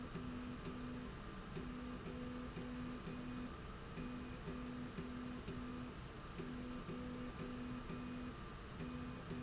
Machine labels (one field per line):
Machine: slide rail